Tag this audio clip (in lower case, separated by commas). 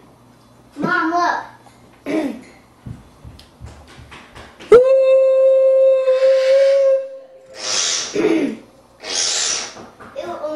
kid speaking, speech